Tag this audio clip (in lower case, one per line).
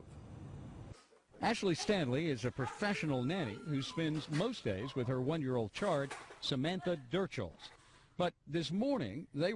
speech